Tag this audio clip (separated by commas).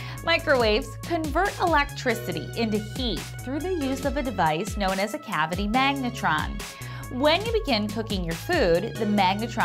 Music, Speech